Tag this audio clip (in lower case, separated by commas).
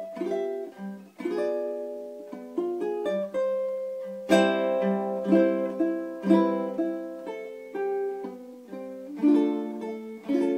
ukulele, music